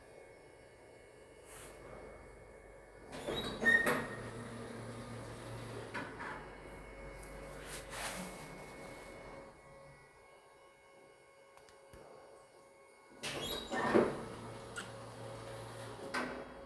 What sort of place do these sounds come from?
elevator